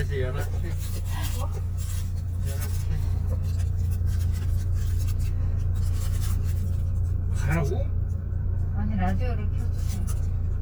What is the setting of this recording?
car